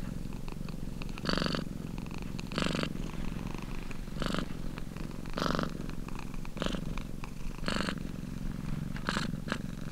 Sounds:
cat purring

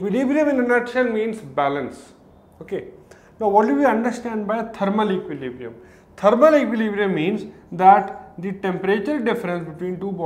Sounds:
Speech

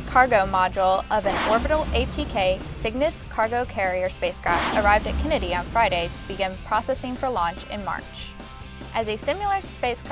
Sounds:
Speech, Music

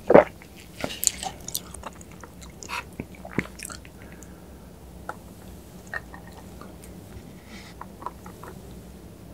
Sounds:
people eating noodle

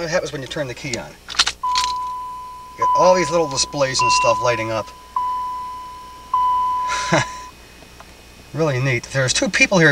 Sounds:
Speech, Single-lens reflex camera

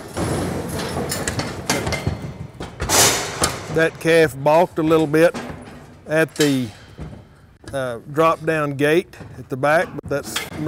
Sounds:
Speech

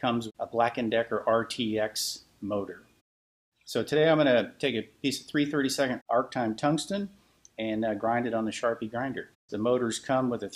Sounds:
Speech

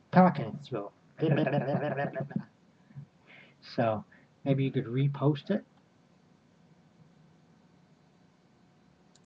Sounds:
Speech

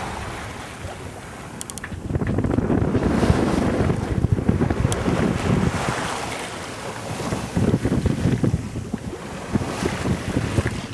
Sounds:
Water vehicle

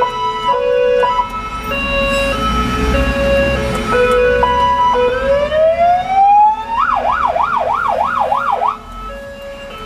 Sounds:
Fire engine, Vehicle, Car, Police car (siren), outside, urban or man-made, Siren

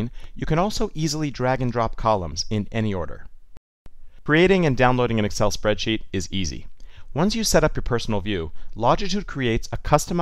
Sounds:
Speech

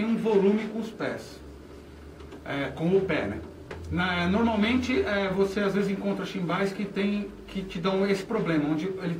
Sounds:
Speech

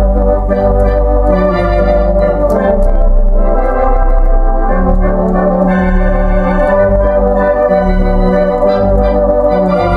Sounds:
playing electronic organ, Music, Electronic organ

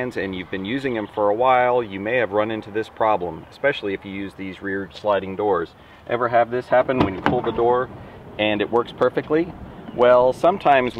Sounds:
Sliding door, Door, Speech

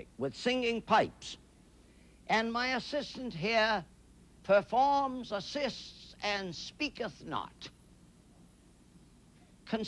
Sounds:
Speech

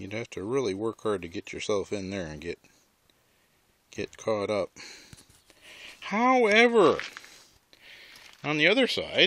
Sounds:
Speech

